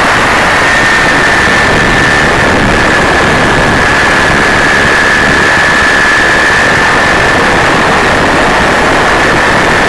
Motorboat traveling at high speed